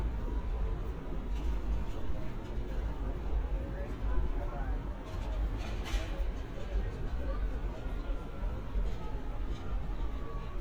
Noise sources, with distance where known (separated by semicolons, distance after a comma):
siren, far; person or small group talking, far